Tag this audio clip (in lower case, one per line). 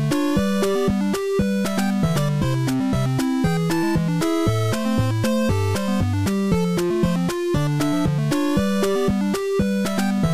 music